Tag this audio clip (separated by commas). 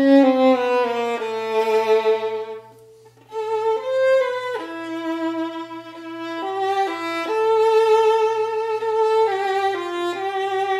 Music, Musical instrument, fiddle